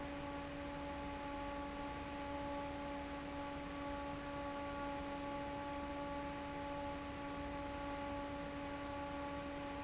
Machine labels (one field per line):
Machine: fan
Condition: normal